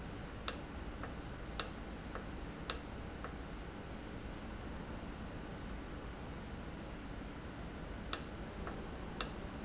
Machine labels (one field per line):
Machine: valve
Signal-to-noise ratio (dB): 0 dB